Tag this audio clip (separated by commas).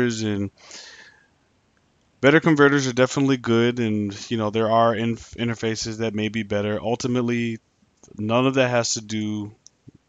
Speech